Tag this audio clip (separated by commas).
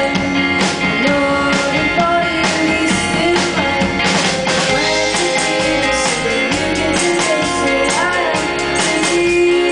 Music, Country